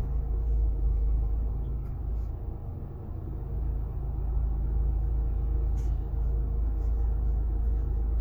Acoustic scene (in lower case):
car